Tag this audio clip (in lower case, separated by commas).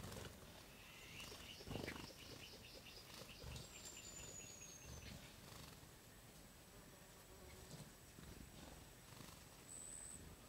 animal